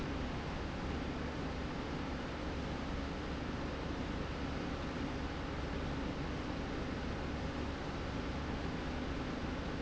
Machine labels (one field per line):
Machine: slide rail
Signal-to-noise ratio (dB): -6 dB